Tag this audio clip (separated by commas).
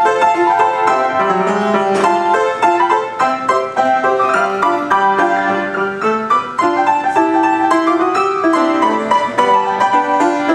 Music